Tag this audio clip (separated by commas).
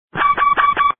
Alarm